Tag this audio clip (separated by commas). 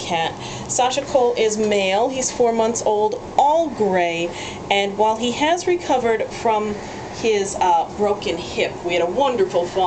Speech